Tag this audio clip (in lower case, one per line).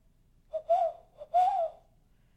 bird
bird song
animal
wild animals